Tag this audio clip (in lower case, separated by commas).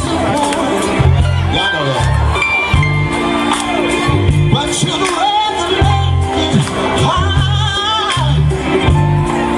music, speech